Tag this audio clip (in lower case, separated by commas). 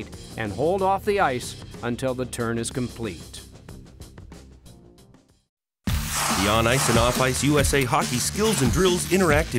speech, music